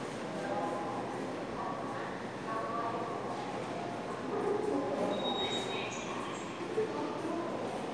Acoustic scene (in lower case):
subway station